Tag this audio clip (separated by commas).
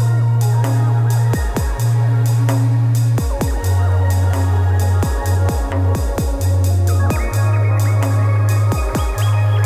Electronic music, Dubstep, Music